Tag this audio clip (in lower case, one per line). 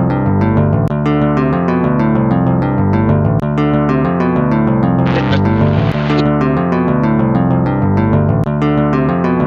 synthesizer